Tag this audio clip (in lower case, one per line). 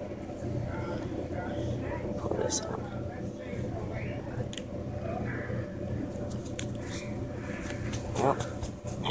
speech